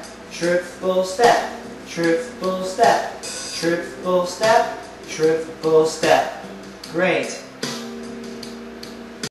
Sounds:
Music, Speech

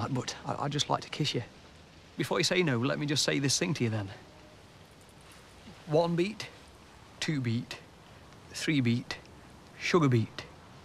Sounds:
Speech

